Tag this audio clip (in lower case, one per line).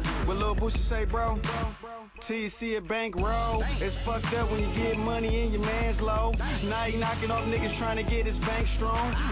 music
dance music